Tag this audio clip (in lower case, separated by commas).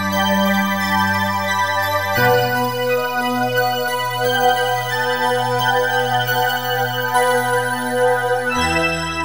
sound effect, music